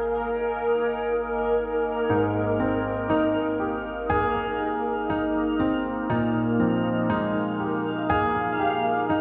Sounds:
music

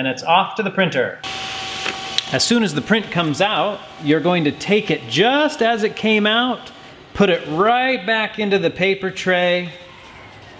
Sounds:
speech
printer

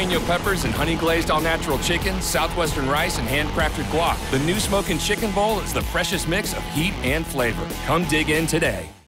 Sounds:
music
speech

